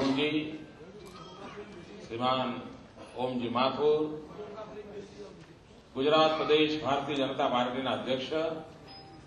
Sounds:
narration, speech, male speech

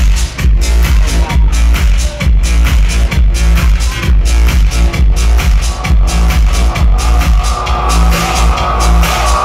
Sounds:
electronic music, techno, music

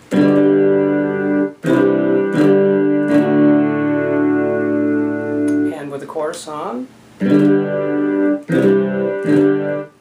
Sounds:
musical instrument, guitar, music, plucked string instrument, speech, ukulele

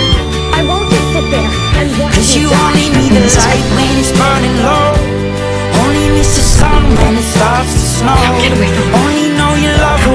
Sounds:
speech, music

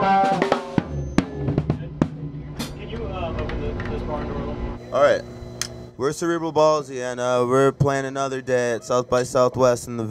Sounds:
snare drum, drum kit, drum, rimshot, percussion, bass drum

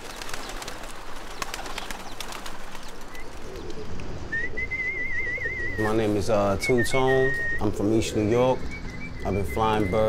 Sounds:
bird, tweet, bird song, coo, dove

